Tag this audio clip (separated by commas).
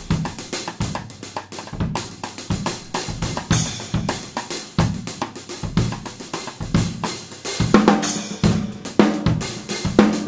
Cymbal, Drum, Rimshot, Hi-hat, Percussion, Drum kit, Snare drum, Bass drum